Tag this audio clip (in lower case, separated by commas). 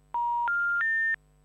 alarm, telephone